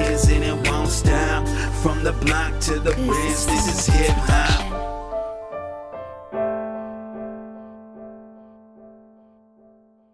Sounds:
Piano, Music, Hip hop music

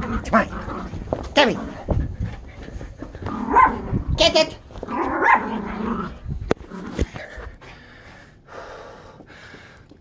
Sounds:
dog growling

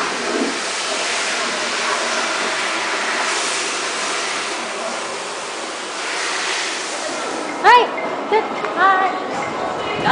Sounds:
Speech

